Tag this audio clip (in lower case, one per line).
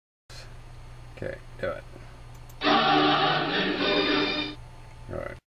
sound effect